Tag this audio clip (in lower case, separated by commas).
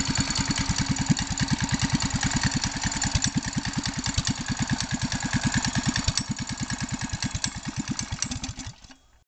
vehicle